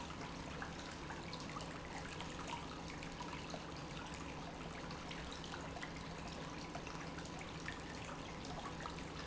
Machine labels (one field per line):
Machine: pump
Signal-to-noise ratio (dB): 6 dB